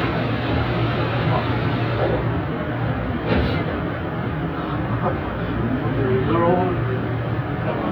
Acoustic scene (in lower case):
subway train